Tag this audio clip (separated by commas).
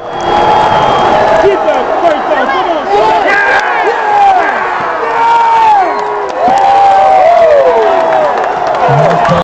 Speech